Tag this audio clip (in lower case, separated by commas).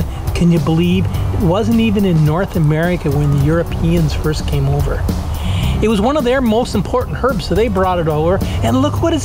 speech, music